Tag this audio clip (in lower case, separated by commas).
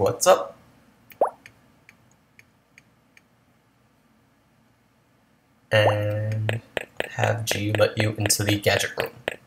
speech